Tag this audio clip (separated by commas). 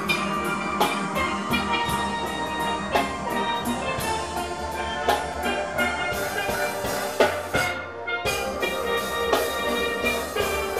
Drum kit, Music, Musical instrument, Drum, Steelpan, Percussion